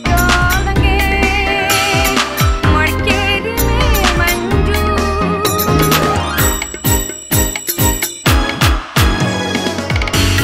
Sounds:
Music

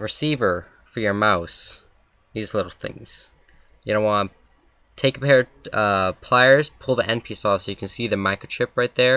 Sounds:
Speech

